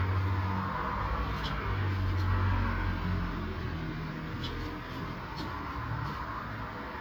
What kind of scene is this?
street